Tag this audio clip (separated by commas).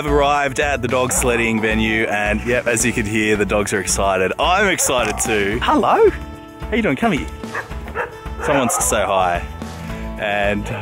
Bow-wow, Speech, Music, Yip